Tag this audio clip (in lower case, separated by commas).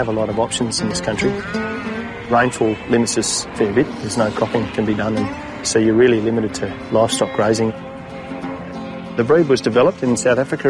speech, sheep, music